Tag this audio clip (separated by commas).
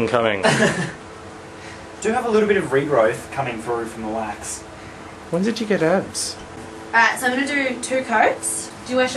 Speech